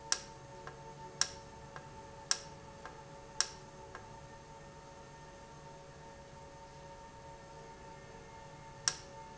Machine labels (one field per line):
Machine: valve